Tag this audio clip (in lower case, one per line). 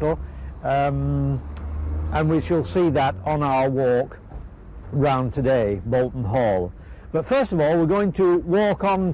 speech